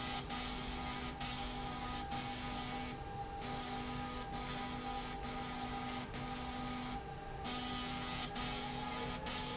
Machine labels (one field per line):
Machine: slide rail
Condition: abnormal